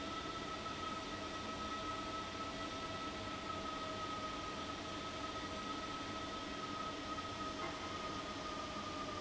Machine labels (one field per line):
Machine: fan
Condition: abnormal